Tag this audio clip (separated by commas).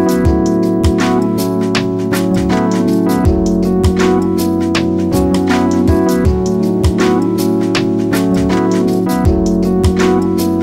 Music